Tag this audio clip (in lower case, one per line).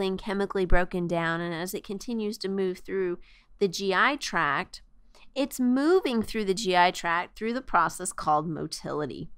speech